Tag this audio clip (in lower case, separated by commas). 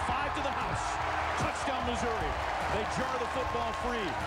speech